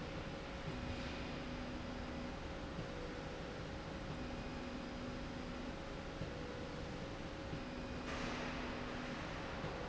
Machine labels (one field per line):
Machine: slide rail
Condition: normal